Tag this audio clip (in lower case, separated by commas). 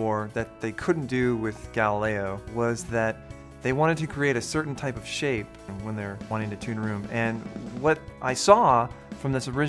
speech, music